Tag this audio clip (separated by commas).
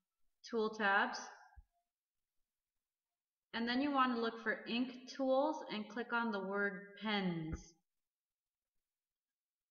Speech